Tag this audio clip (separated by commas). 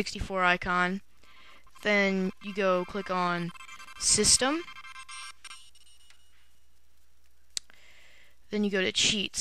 Speech